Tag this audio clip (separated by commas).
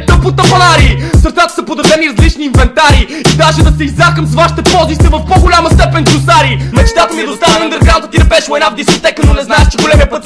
Music